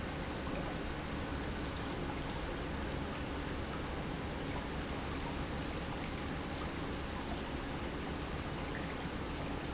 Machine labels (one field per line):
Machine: pump